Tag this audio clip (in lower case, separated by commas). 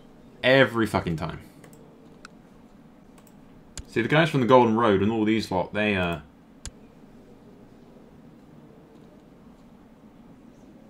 speech